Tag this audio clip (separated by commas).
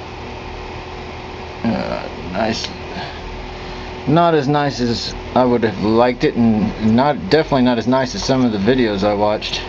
Speech